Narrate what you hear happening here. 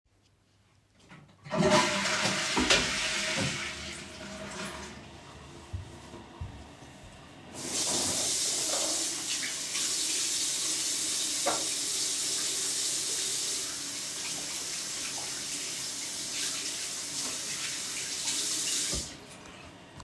I flush the toilet. Then I walk to the sink and wash my hands.